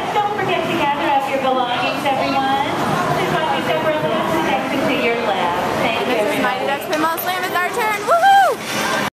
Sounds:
speech

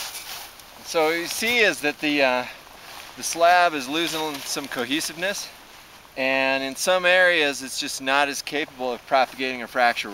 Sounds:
speech

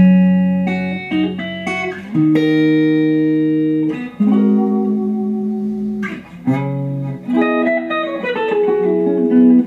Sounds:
plucked string instrument
guitar
inside a small room
music
musical instrument
electronic tuner

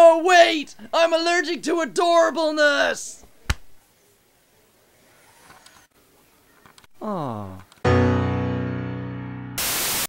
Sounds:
music
speech

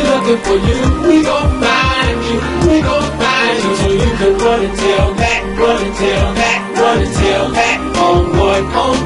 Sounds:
music

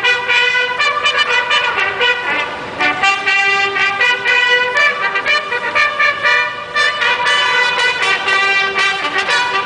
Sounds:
playing bugle

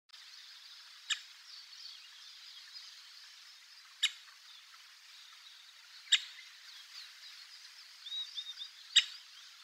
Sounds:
woodpecker pecking tree

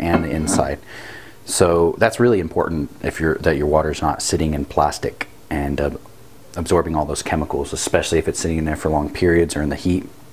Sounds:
speech

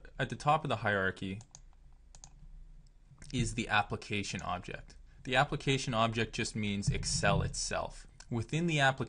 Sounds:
speech

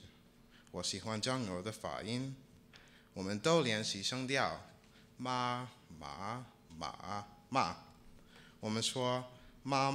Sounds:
man speaking
speech

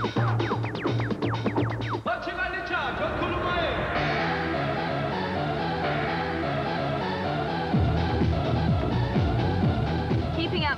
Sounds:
speech
soundtrack music
music

